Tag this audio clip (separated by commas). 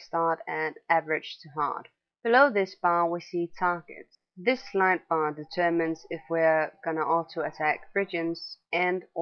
Speech